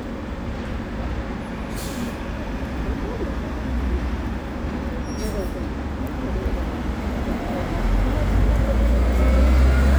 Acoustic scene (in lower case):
street